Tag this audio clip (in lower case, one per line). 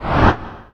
swoosh